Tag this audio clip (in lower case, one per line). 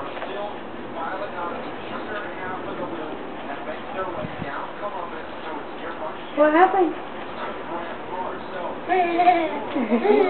speech noise
speech